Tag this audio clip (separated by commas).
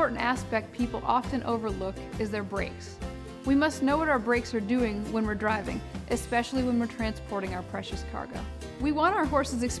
Speech, Music